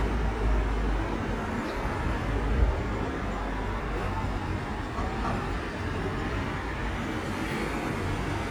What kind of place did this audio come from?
street